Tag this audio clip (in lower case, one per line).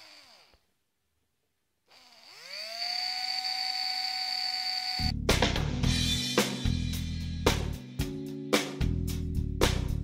music